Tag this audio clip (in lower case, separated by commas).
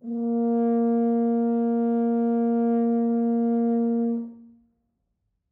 brass instrument, music, musical instrument